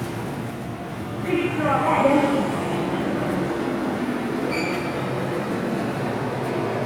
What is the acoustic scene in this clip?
subway station